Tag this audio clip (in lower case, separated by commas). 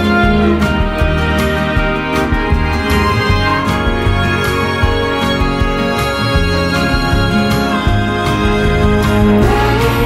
music, background music